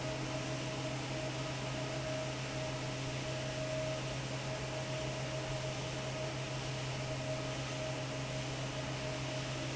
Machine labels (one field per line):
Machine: fan